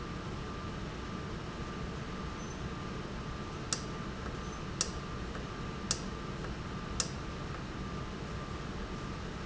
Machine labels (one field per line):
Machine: valve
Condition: normal